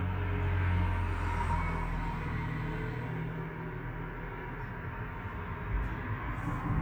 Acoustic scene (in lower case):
street